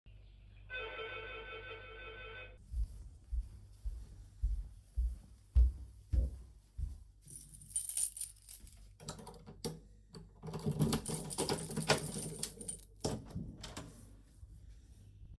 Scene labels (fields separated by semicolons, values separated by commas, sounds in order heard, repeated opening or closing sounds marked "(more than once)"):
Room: living room; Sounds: bell ringing, footsteps, keys, door